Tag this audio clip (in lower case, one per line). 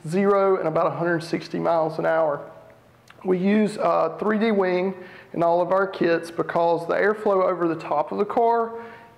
speech